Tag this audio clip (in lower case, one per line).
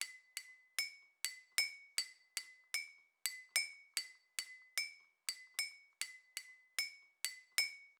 bell
glass